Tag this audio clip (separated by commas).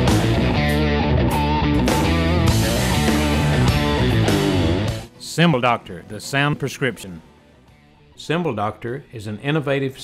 Cymbal